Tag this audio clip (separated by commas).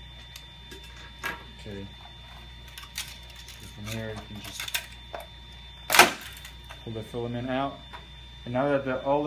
Speech